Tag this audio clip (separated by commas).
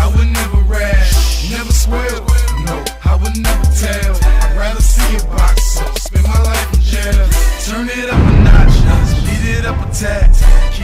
Music